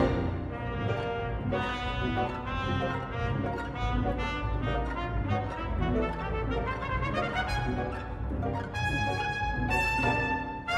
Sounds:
orchestra, music

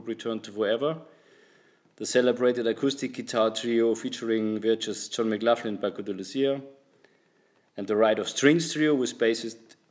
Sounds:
speech

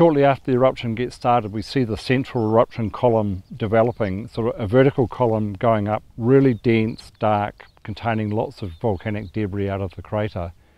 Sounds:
speech

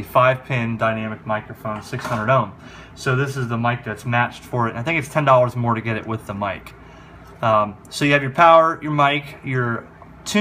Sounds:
speech

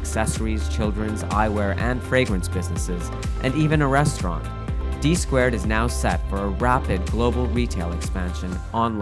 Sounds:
speech, music

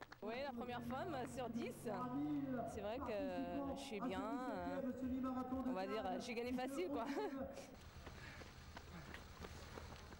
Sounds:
run, speech

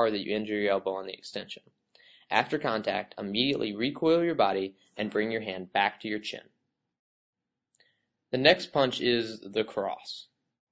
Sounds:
speech

